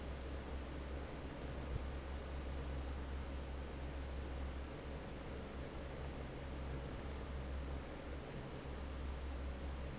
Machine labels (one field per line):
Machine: fan